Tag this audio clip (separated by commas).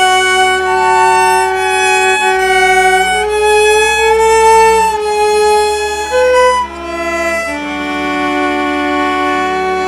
Musical instrument, Violin, Music